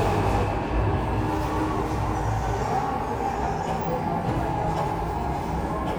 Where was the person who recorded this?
in a subway station